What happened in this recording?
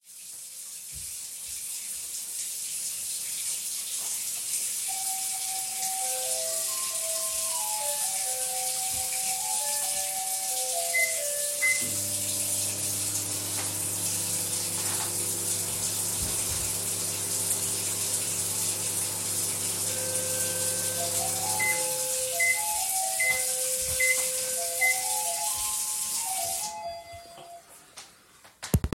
The water was running and the bell rang. I also used the microwave at the same time.